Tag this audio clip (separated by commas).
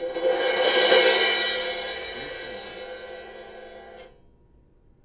Musical instrument, Music, Percussion, Crash cymbal, Cymbal